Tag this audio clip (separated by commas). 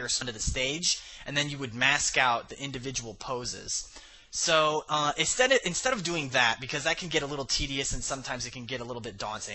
Speech